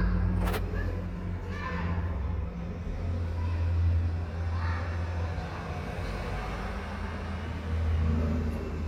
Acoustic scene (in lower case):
residential area